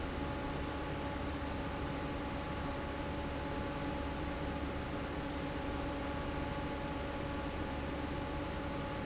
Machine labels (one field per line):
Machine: fan